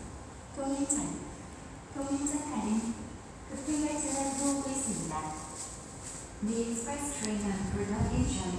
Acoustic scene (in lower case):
subway station